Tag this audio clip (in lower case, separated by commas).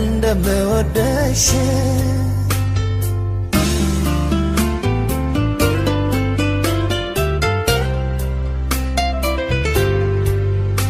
independent music, music